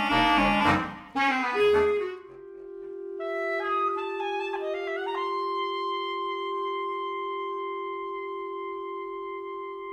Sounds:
clarinet, playing clarinet, musical instrument, music, saxophone

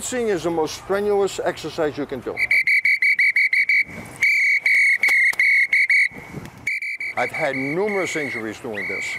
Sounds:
speech, outside, urban or man-made

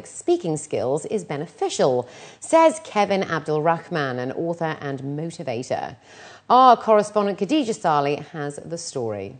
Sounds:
speech, woman speaking

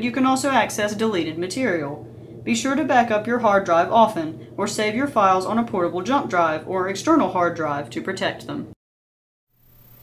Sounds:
speech

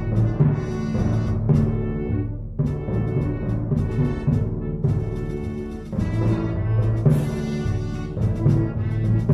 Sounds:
playing timpani

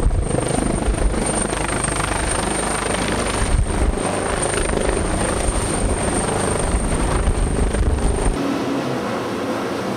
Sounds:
helicopter, vehicle

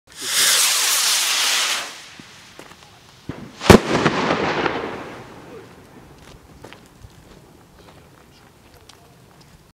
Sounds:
fireworks, speech, fireworks banging

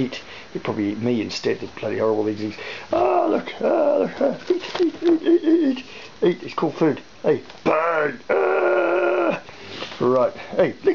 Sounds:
inside a small room, speech

